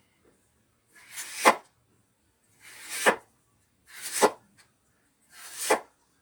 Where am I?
in a kitchen